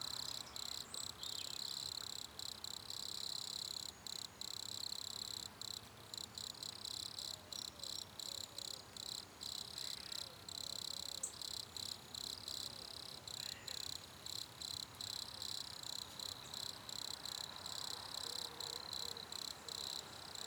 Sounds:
Insect, Animal, Wild animals, Cricket

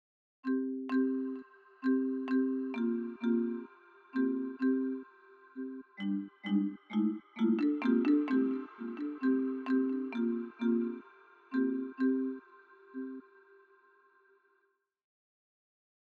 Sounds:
Mallet percussion, Percussion, Musical instrument, Music, Marimba

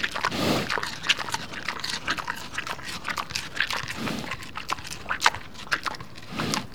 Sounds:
Animal, livestock

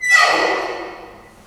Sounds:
Squeak

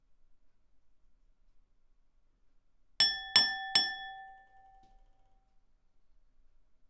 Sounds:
Glass, Chink

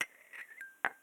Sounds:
home sounds, dishes, pots and pans, Cutlery, Glass, clink

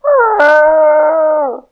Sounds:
pets, Dog, Animal

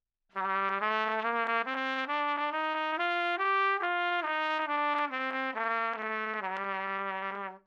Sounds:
Musical instrument, Trumpet, Music, Brass instrument

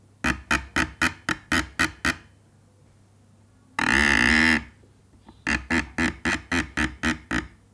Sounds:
Screech

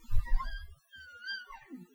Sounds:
Squeak

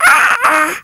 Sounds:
Speech, Human voice

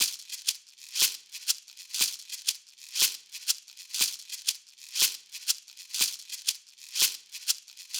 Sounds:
Percussion, Rattle (instrument), Music, Musical instrument

